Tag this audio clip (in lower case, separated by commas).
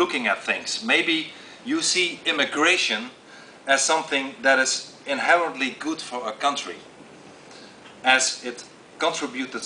male speech, narration, speech